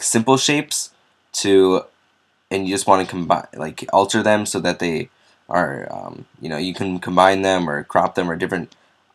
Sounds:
speech

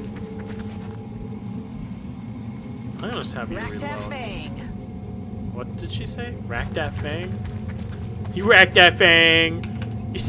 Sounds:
speech

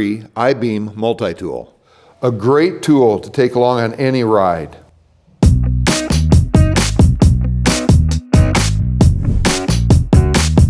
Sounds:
music, speech

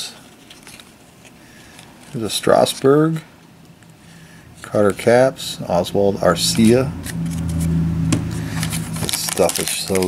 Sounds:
speech, inside a small room

